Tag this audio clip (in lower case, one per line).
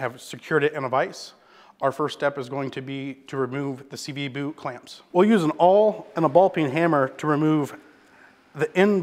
speech